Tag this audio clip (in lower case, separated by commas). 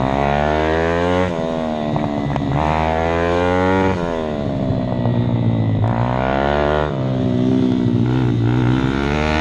medium engine (mid frequency), vroom, vehicle